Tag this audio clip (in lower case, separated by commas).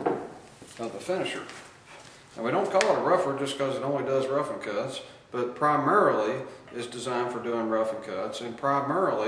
speech